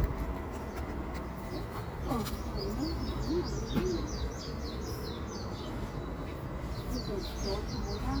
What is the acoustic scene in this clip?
park